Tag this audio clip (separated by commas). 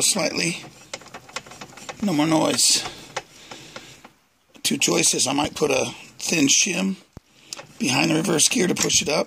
Speech